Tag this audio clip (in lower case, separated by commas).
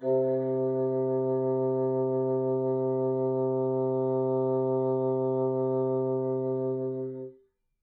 musical instrument, woodwind instrument, music